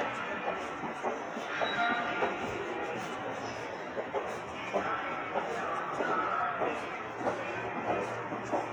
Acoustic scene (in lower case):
subway station